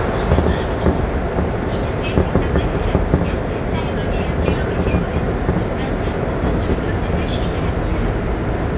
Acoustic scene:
subway train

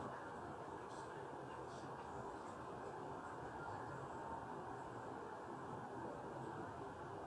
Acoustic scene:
residential area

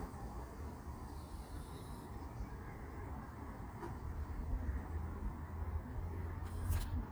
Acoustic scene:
park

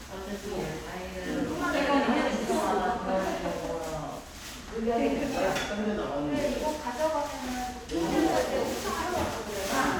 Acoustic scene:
crowded indoor space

